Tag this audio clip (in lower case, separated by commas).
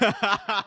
human voice, laughter